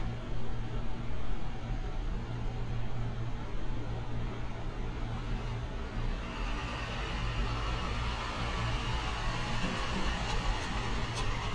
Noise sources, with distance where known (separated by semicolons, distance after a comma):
engine of unclear size